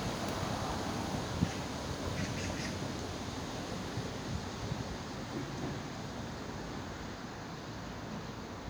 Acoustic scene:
park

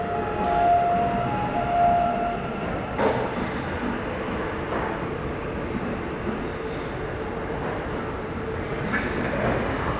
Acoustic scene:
subway station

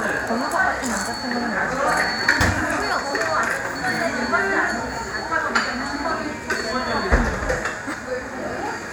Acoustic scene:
cafe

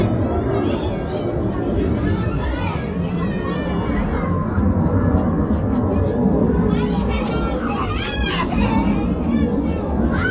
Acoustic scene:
residential area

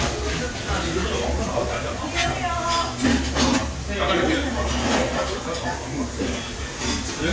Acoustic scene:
crowded indoor space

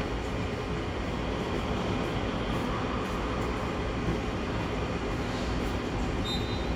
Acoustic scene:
subway station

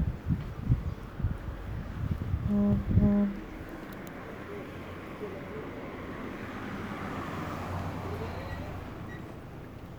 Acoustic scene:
residential area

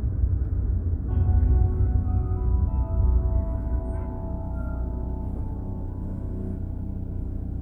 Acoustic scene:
car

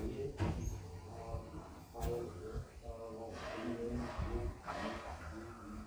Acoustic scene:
elevator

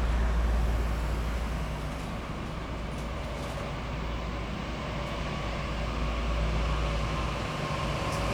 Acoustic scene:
street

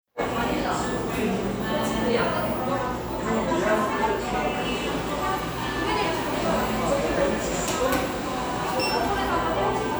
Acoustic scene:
cafe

